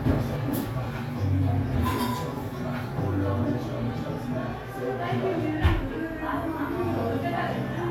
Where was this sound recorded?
in a cafe